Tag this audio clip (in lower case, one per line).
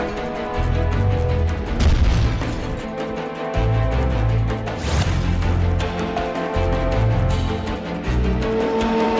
breaking
music